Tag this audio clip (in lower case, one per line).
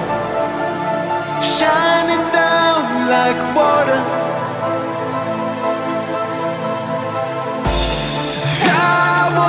music